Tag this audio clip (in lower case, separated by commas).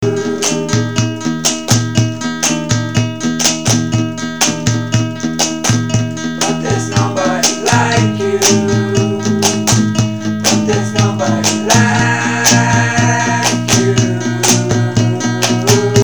plucked string instrument, music, musical instrument, guitar